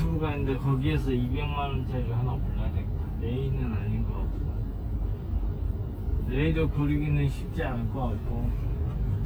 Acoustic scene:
car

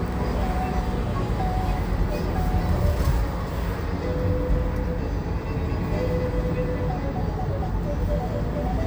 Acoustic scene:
car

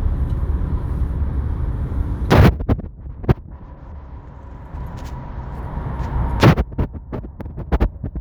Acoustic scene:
car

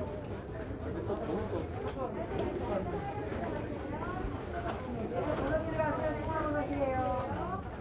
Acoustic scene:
crowded indoor space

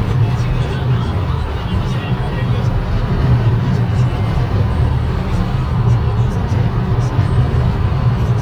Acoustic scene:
car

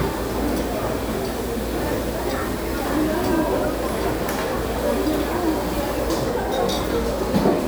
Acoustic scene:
restaurant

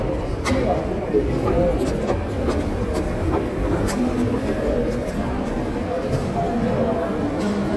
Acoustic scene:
subway station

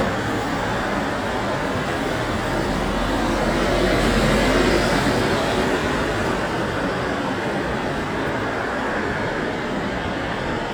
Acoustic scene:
street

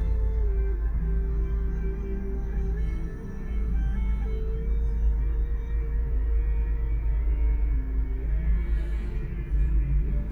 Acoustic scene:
car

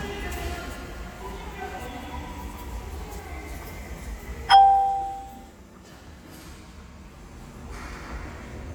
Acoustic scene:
subway station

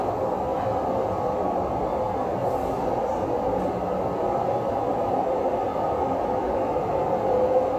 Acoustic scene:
subway station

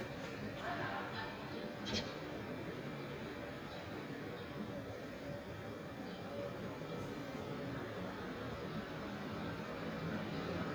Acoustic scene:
residential area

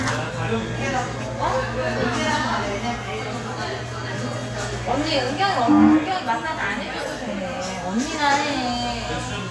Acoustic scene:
cafe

